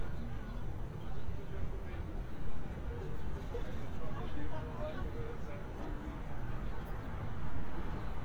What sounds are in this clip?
person or small group talking